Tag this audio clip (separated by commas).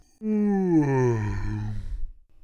Human voice